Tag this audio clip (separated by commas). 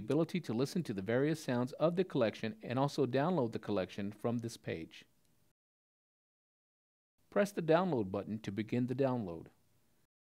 Speech